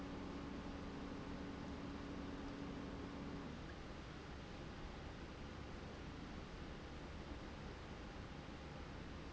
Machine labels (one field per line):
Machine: pump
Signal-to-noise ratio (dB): 6 dB